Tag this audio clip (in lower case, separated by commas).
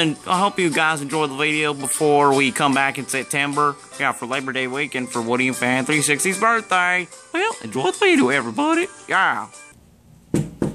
music, speech